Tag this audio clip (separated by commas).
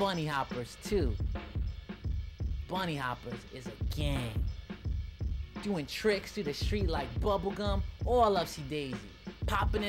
Music, Speech